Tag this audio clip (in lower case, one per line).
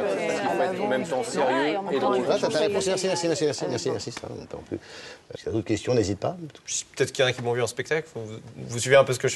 speech